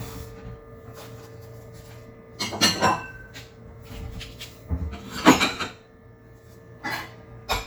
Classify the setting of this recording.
kitchen